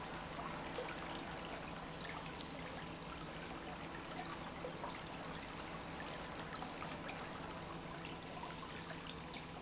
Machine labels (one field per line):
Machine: pump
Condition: normal